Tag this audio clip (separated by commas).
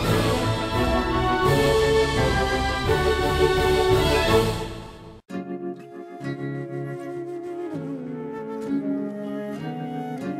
Music